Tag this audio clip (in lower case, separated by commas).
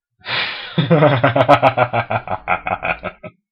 human voice, laughter